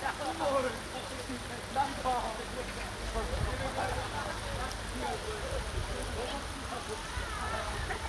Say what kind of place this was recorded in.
park